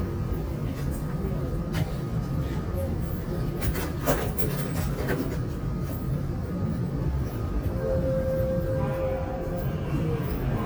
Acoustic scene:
subway train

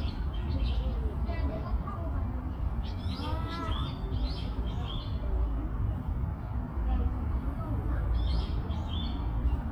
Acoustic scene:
park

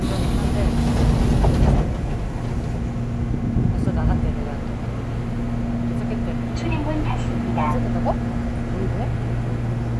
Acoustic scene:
subway train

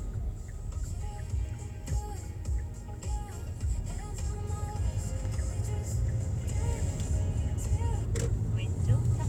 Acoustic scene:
car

